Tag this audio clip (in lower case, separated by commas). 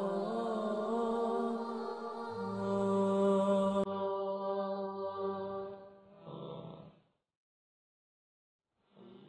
music, mantra